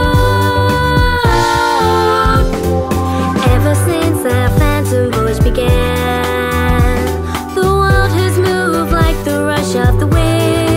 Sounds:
music, soundtrack music

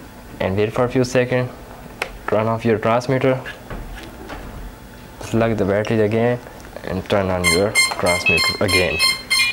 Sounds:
speech, inside a small room

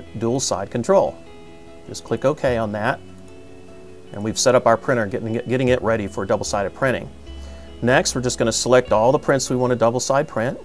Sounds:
music, speech

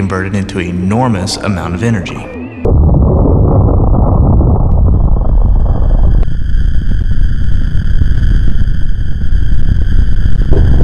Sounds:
speech

